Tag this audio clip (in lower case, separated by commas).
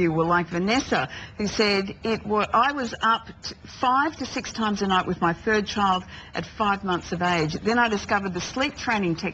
speech